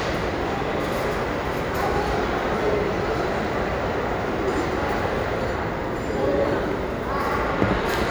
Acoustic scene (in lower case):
crowded indoor space